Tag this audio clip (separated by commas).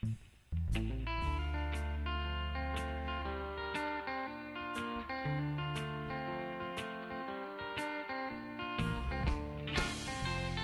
Music